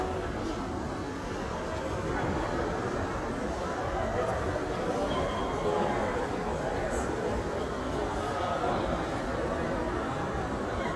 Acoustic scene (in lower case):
crowded indoor space